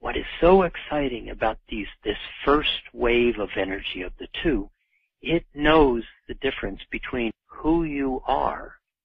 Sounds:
monologue, Speech

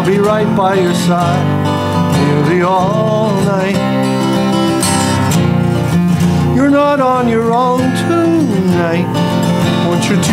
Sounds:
Music, Lullaby

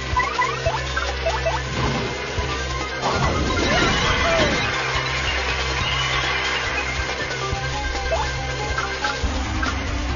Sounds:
Music

